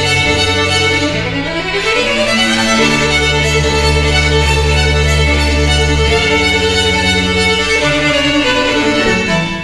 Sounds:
String section

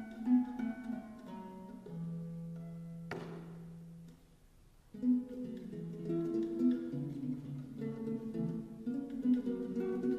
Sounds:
Music, playing acoustic guitar, Strum, Acoustic guitar, Plucked string instrument, Guitar, Musical instrument

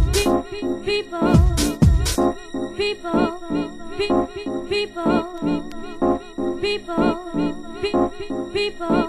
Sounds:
Music

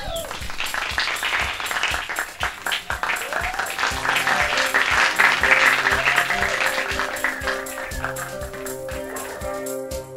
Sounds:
Guitar, Musical instrument, Music

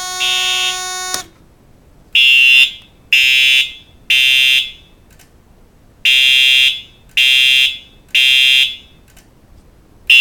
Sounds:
Buzzer, Fire alarm

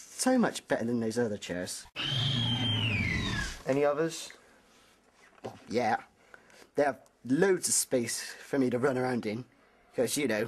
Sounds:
Speech

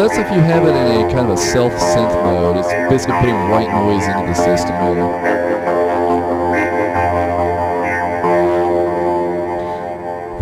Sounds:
Music, Speech

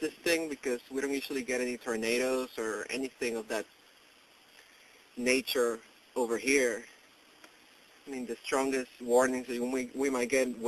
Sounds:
Speech

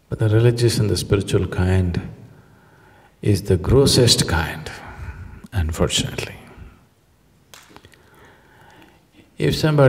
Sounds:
Speech, inside a large room or hall

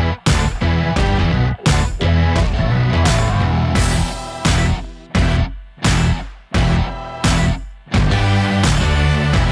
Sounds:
Music

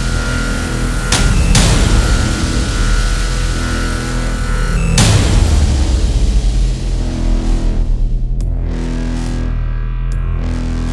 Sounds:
Music

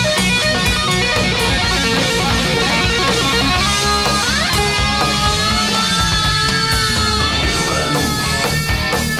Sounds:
Music, inside a large room or hall, Speech

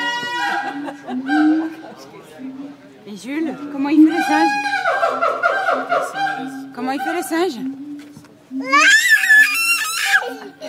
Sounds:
gibbon howling

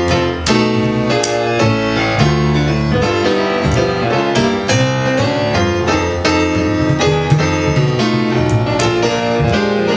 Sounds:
Music

